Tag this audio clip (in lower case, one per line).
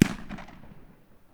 fireworks
explosion